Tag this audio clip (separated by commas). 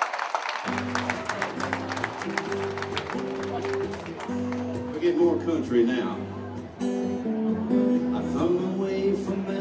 Speech, Music